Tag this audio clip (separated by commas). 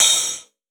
Musical instrument, Hi-hat, Music, Percussion, Cymbal